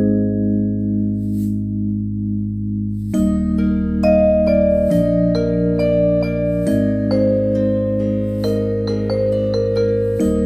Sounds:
music

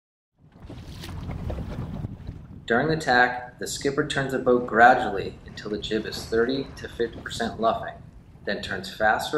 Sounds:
speech, water vehicle

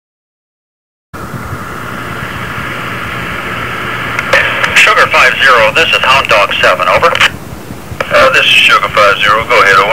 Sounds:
police radio chatter

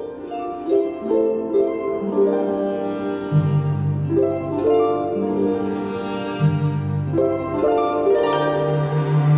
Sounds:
wedding music, music

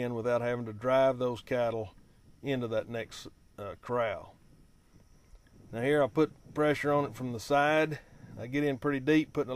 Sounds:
speech

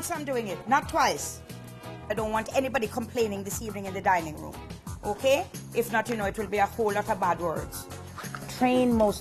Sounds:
music, speech

